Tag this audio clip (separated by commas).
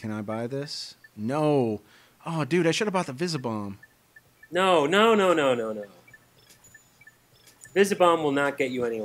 Speech